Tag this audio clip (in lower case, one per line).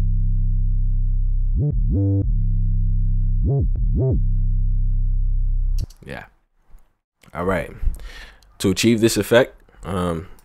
speech